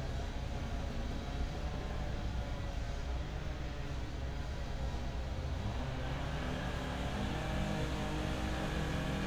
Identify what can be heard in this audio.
unidentified powered saw